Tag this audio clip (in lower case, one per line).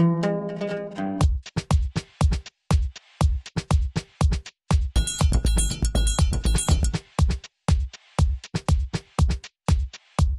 music